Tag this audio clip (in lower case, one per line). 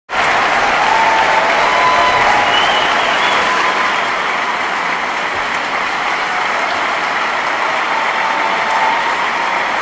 people clapping
applause